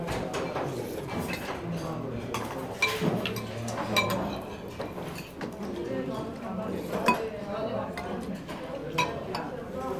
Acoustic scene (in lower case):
crowded indoor space